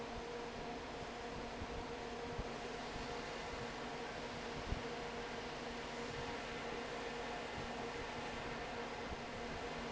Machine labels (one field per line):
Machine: fan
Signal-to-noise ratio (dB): 6 dB